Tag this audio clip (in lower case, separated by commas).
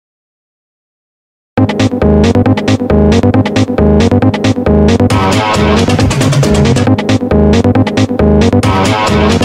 sampler, music, pop music